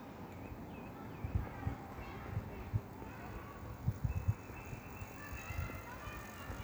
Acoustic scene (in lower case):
park